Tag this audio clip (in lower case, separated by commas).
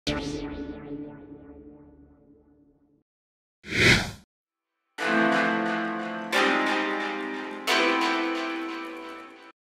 music